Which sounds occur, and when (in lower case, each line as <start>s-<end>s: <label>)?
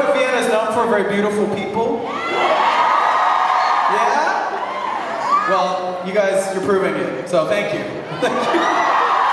0.0s-2.1s: male speech
0.0s-9.3s: crowd
2.0s-5.7s: shout
3.8s-4.3s: male speech
5.5s-7.1s: male speech
7.3s-8.0s: male speech
8.1s-9.2s: laughter
8.1s-9.3s: shout